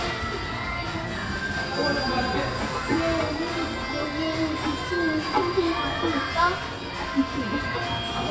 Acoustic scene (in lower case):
cafe